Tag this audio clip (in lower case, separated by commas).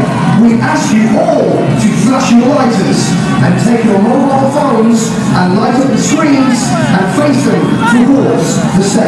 speech